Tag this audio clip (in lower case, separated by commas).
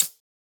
hi-hat, music, percussion, musical instrument, cymbal